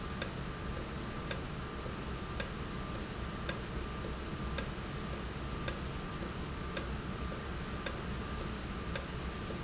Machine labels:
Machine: valve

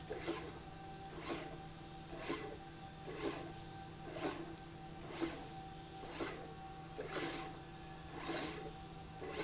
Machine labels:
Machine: slide rail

